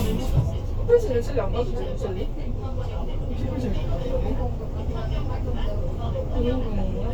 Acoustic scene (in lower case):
bus